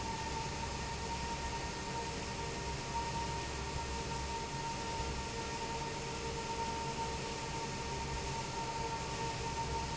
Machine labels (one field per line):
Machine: fan